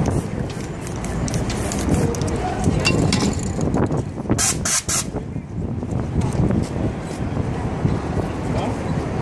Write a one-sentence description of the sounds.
Several pressurized air sprays with metal clanging briefly as a crowd of people talk and wind blows into a microphone